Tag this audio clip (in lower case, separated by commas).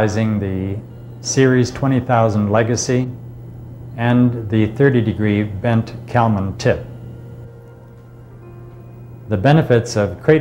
speech